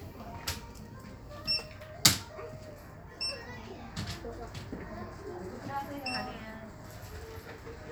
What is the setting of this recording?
crowded indoor space